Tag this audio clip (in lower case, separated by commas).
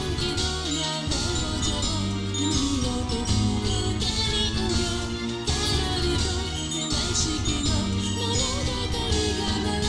music, jingle (music), video game music